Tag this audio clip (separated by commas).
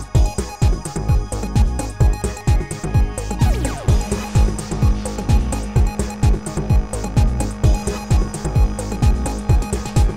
Music